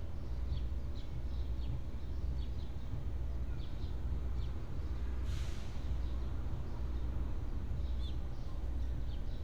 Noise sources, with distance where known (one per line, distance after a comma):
large-sounding engine
music from an unclear source, far